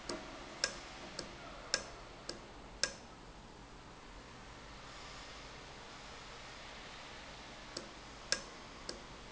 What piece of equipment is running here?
valve